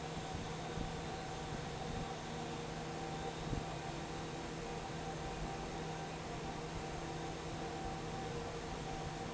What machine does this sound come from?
fan